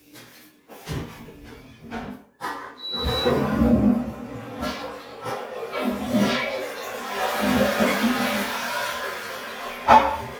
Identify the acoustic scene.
restroom